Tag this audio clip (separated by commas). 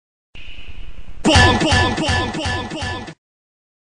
Music